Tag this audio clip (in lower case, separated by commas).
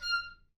woodwind instrument, musical instrument, music